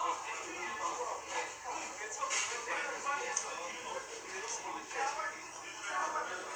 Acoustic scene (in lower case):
crowded indoor space